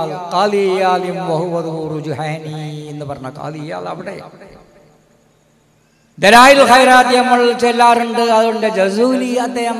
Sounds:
speech, man speaking, narration

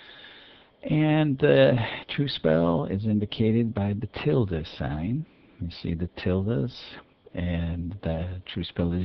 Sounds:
speech

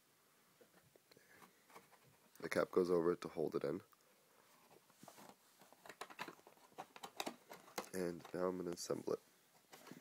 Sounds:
inside a small room, speech

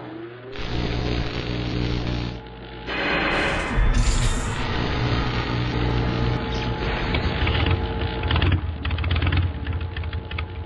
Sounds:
motor vehicle (road)

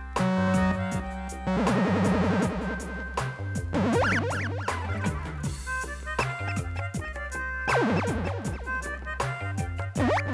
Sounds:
music

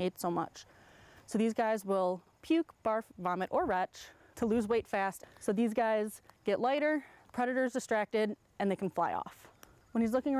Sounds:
speech

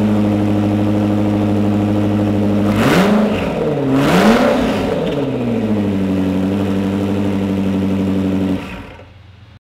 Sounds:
accelerating, vehicle

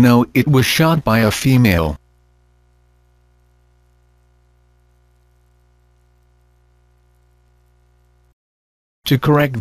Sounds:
speech synthesizer

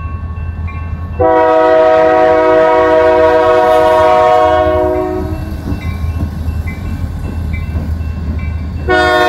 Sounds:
train horning

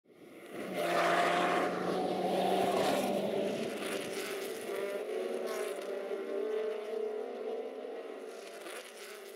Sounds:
car, race car, vehicle

